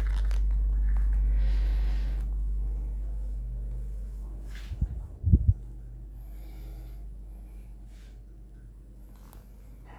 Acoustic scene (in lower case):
elevator